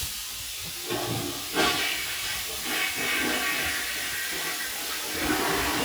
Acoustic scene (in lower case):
restroom